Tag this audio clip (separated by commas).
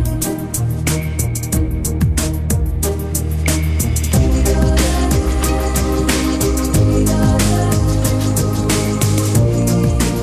Music